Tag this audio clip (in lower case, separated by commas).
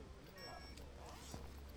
zipper (clothing), alarm, home sounds, telephone